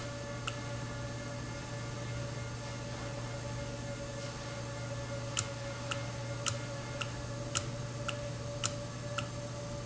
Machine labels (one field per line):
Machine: valve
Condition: normal